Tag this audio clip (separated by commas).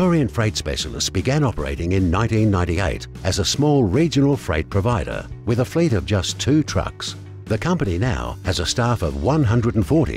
Music, Speech